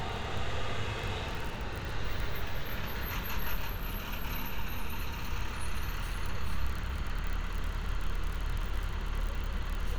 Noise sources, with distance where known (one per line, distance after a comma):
large-sounding engine